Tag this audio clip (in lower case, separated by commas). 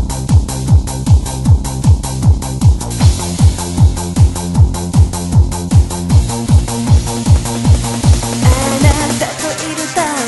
techno, music